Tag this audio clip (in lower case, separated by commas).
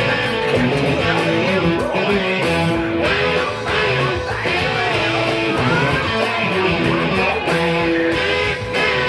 music